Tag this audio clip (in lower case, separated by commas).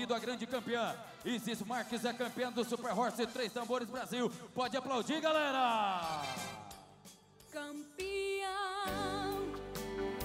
speech, music